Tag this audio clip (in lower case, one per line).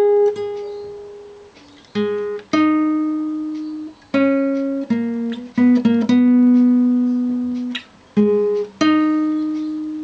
guitar
music
plucked string instrument
musical instrument